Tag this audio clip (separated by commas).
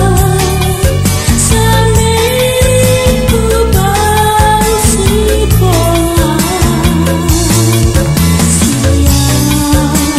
Music